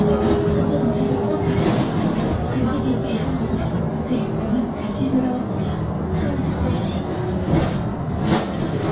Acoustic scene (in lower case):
bus